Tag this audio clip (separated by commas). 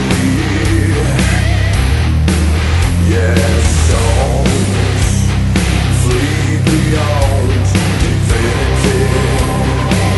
Music, Singing, Angry music